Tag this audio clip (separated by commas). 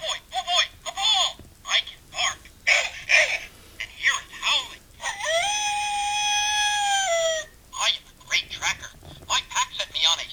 Speech, inside a small room